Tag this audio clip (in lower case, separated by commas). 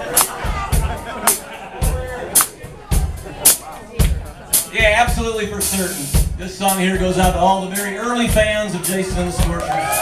speech, music